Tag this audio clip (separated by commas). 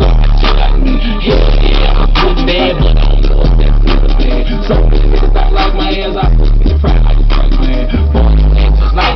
Music